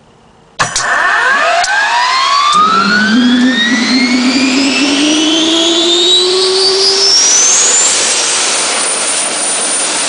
A motor starts up and quickly accelerates with a high-pitched whine